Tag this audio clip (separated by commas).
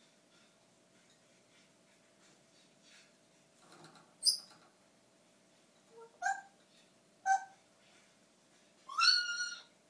Bird